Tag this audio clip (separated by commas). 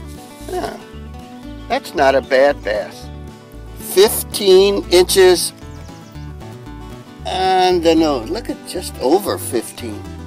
Music, Speech